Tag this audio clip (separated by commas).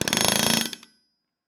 Tools